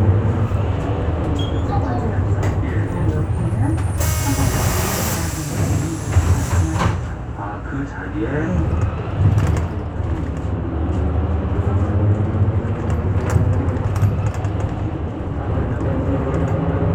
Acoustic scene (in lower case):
bus